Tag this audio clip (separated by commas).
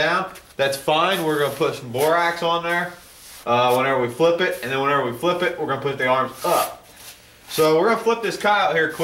Speech, inside a large room or hall